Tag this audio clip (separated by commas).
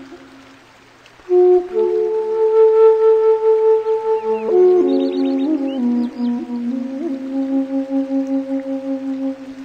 Music